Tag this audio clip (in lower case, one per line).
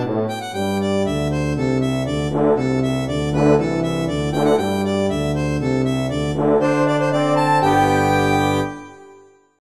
music